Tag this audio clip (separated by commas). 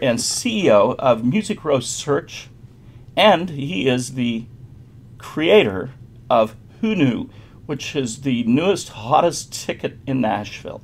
Speech